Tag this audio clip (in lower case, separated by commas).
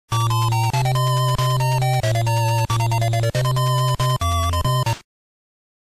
music